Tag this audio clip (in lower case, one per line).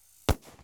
fireworks
explosion